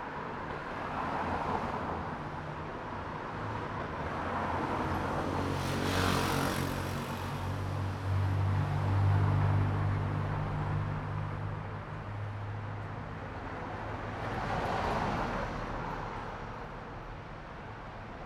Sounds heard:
motorcycle engine accelerating, car engine accelerating, car wheels rolling, car, motorcycle

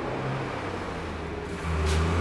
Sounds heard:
bus, bus compressor, bus engine accelerating

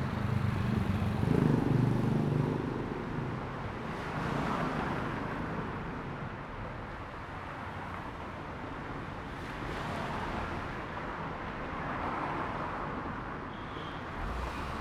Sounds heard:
car wheels rolling, motorcycle engine accelerating, motorcycle engine idling, motorcycle, car, car engine accelerating

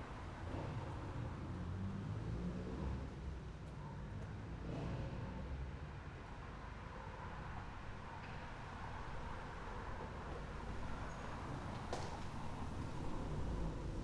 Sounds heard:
motorcycle, motorcycle engine accelerating, car, car engine accelerating, car wheels rolling

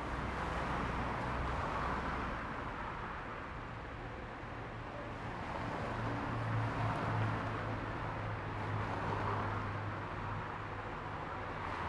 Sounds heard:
bus, bus engine idling, bus compressor, car wheels rolling, car

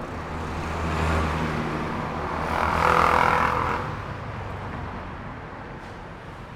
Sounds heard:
car wheels rolling, motorcycle, bus, car, motorcycle engine accelerating, bus engine accelerating

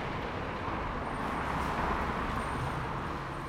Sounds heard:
motorcycle engine accelerating, car, bus, bus compressor, bus brakes, car wheels rolling, motorcycle

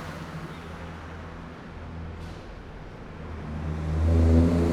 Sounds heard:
car wheels rolling, car, people talking, bus compressor, bus, bus engine accelerating

